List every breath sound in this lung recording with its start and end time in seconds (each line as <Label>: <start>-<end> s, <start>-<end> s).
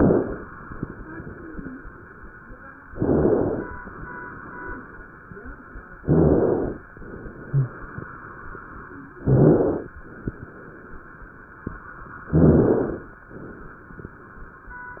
Inhalation: 2.88-3.76 s, 6.07-6.83 s, 9.16-9.93 s, 12.33-13.09 s